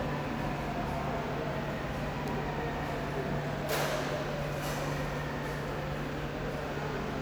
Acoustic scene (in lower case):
subway station